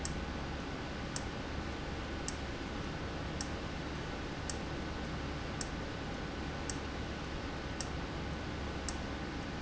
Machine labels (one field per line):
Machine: valve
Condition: abnormal